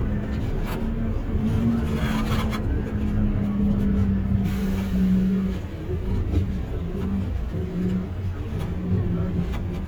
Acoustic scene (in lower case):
bus